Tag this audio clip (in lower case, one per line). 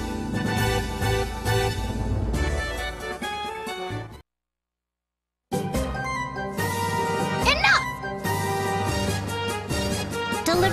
speech
music